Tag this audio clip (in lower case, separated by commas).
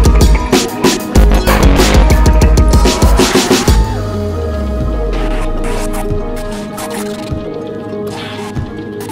electronica, music